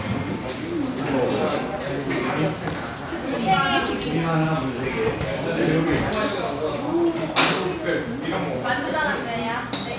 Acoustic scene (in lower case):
crowded indoor space